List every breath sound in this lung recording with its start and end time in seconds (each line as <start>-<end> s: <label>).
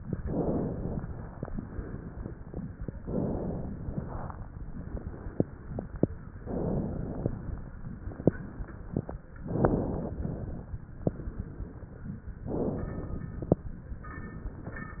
0.18-1.00 s: inhalation
1.00-2.57 s: exhalation
3.00-3.68 s: inhalation
3.68-6.02 s: exhalation
6.43-7.30 s: inhalation
7.32-9.34 s: exhalation
9.39-10.15 s: inhalation
10.19-12.37 s: exhalation
12.46-13.33 s: inhalation
13.39-15.00 s: exhalation